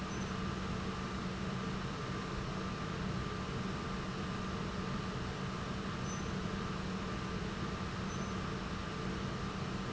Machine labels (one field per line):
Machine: pump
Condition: normal